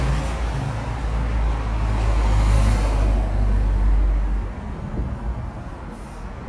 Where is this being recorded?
on a street